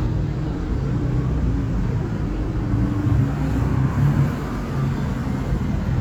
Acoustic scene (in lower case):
street